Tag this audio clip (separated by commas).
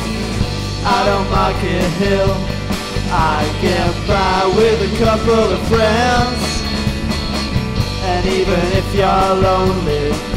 Music